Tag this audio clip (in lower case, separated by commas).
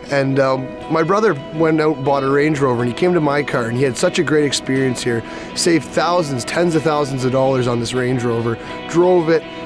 music, speech